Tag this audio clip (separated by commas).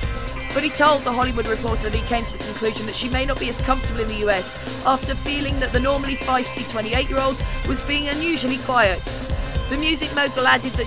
Speech, Music